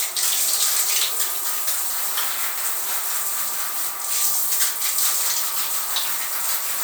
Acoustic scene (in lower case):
restroom